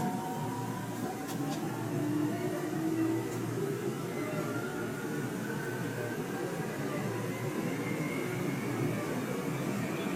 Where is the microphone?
on a subway train